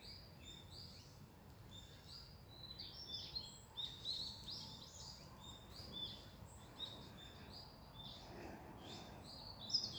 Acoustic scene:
park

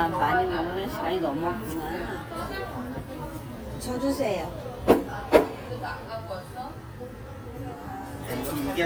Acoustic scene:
crowded indoor space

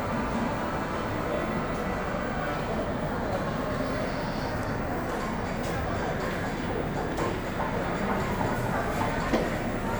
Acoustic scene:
cafe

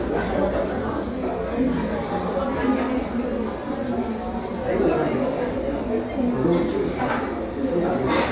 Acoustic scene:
crowded indoor space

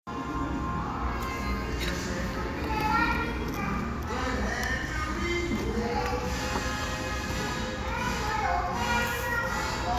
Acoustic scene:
restaurant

